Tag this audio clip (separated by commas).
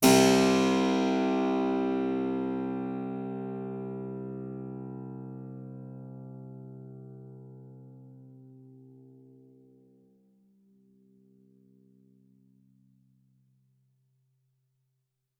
Music, Keyboard (musical), Musical instrument